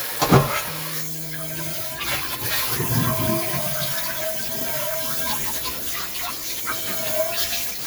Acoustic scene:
kitchen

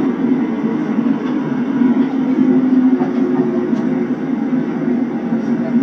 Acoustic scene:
subway train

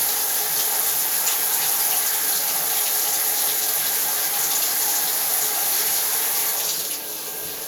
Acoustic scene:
restroom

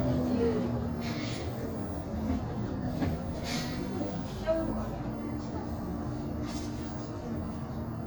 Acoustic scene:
bus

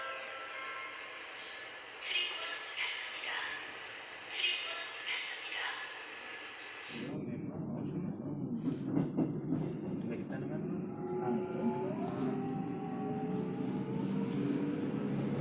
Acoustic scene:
subway train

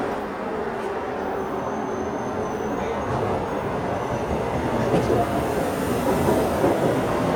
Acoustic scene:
subway station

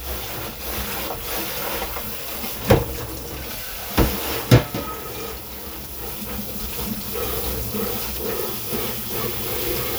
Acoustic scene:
kitchen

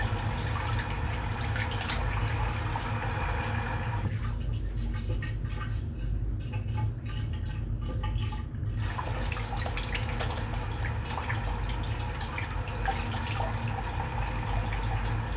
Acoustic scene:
restroom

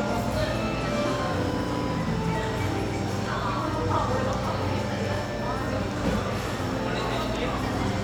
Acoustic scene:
cafe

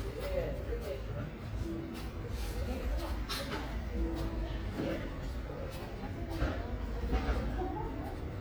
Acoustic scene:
residential area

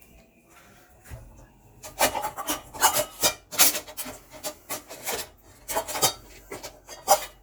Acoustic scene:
kitchen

